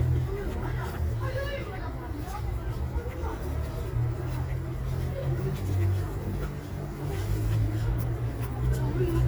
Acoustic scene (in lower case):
residential area